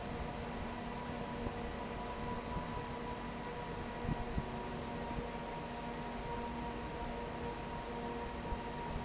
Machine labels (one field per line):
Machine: fan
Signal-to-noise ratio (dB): 0 dB